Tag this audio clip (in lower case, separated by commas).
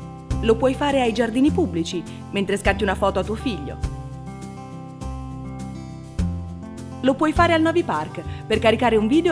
speech, music